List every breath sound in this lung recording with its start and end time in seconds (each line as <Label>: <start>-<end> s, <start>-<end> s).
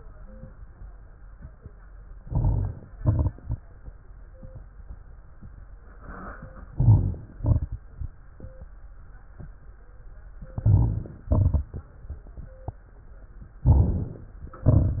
Inhalation: 2.21-2.97 s, 6.67-7.35 s, 10.51-11.19 s, 13.65-14.43 s
Exhalation: 2.96-3.72 s, 7.40-8.08 s, 11.23-12.01 s, 14.61-15.00 s
Crackles: 2.16-2.91 s, 2.96-3.72 s, 6.67-7.35 s, 7.40-8.08 s, 10.51-11.19 s, 11.23-12.01 s, 13.65-14.43 s, 14.61-15.00 s